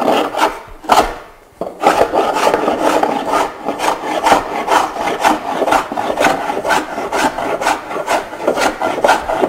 Scraping of wood